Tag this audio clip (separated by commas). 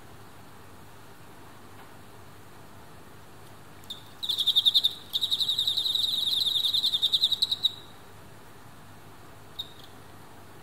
cricket chirping